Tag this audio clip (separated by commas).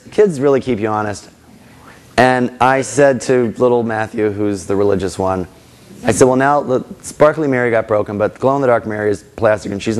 Speech